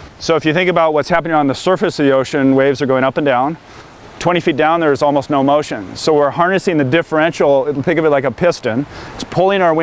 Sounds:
Speech

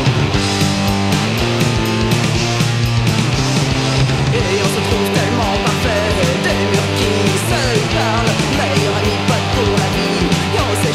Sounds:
Music

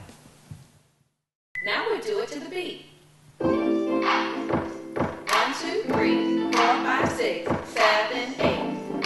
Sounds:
woman speaking

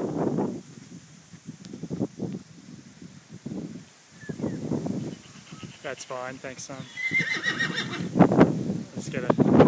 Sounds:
Speech, Horse

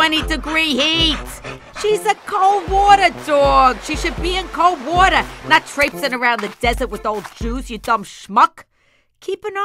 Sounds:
Music, Speech

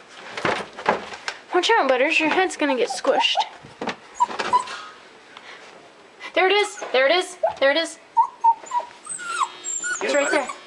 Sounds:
Speech, Animal, pets, Dog

